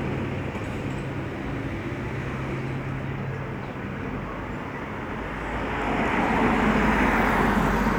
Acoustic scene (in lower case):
street